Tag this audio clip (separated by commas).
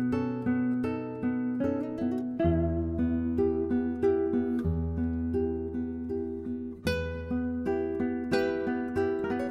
Guitar, Music, Acoustic guitar, Musical instrument, Plucked string instrument